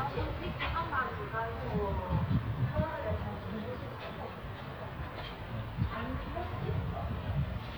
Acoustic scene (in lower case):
residential area